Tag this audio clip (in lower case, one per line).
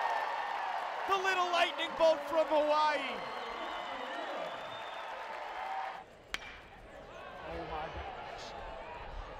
run
speech